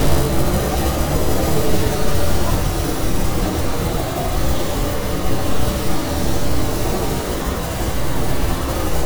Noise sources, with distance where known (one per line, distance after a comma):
unidentified impact machinery, near